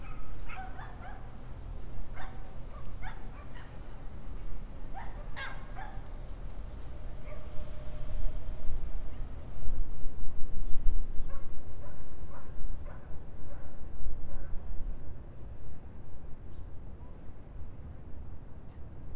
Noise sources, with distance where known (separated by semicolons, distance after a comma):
dog barking or whining, far